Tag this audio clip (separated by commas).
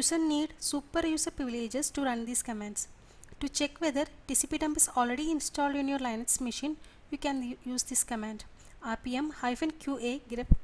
Speech